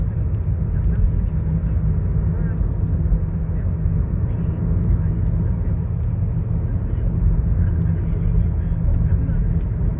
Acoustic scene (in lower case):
car